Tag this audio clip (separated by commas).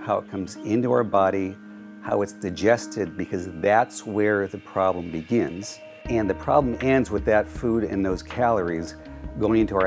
Music, Speech